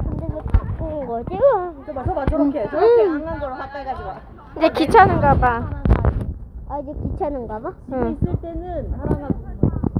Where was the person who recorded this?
in a park